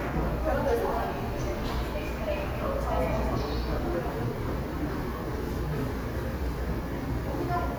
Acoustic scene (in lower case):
subway station